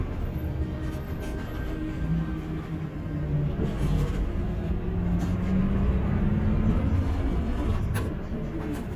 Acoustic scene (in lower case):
bus